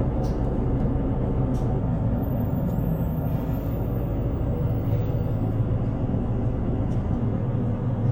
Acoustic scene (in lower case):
bus